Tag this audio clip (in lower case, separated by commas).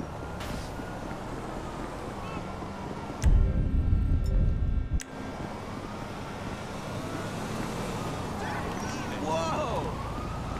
speech, car, vehicle